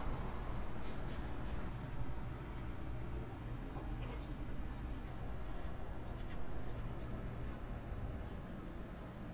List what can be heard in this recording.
background noise